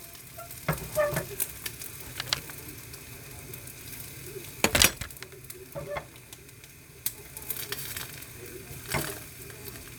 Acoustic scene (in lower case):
kitchen